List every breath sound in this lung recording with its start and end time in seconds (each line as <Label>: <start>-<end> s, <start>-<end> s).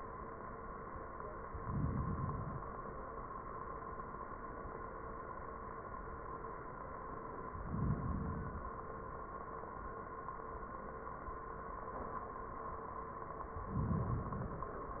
Inhalation: 1.59-2.74 s, 7.53-8.69 s, 13.64-14.79 s